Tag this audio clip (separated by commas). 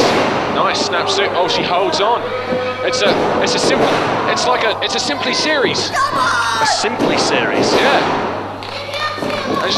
thud, Speech